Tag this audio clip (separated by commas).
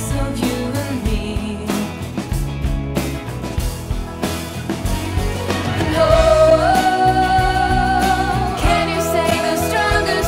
Music